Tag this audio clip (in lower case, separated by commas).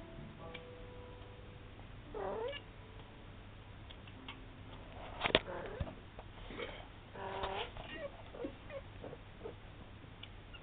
pets, animal, cat